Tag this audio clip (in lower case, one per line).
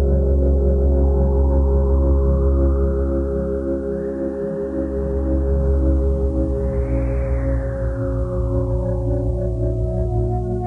music